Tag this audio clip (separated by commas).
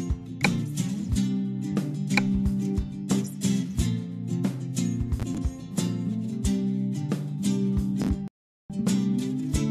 Music